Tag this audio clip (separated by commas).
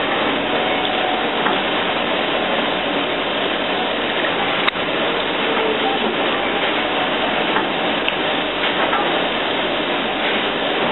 Train, Vehicle, Rail transport, train wagon